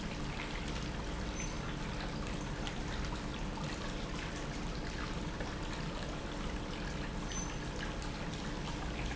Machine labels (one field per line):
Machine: pump